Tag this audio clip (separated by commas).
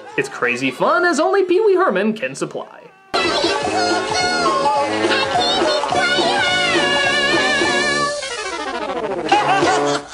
Speech, Music